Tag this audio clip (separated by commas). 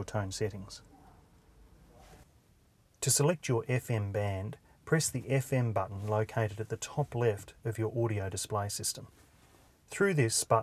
Speech